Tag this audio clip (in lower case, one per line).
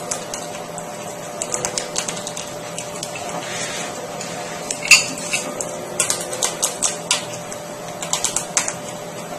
patter